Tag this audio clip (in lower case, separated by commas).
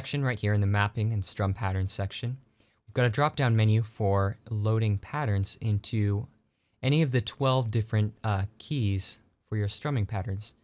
speech